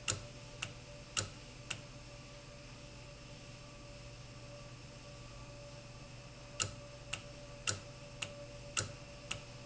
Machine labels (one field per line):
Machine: valve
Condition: normal